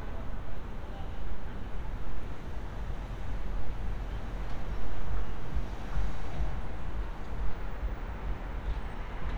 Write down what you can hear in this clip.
medium-sounding engine